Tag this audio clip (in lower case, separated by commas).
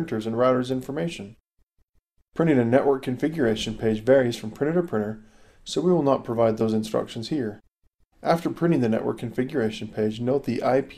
speech